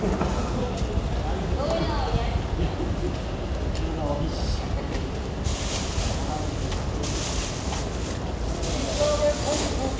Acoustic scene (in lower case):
residential area